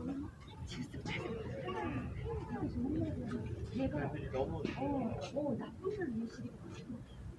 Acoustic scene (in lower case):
residential area